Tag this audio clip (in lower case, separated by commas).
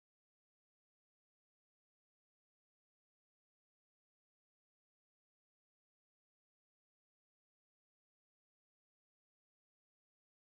speech, music